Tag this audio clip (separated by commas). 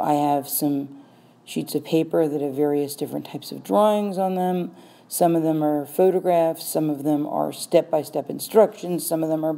Speech